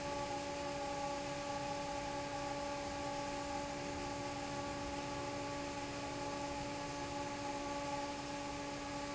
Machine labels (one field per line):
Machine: fan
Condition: normal